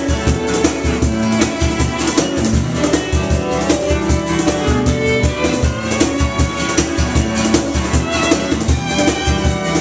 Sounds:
Music, Field recording

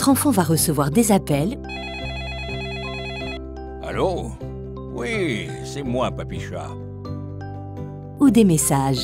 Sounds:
Music, Speech

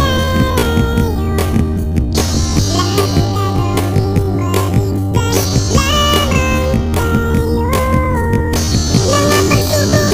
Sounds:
Music

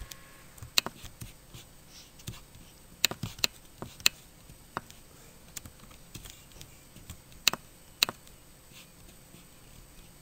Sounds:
inside a small room

